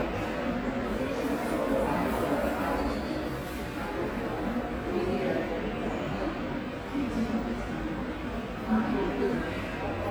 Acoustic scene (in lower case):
subway station